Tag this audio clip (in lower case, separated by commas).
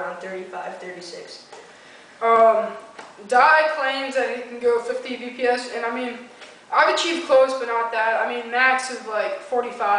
speech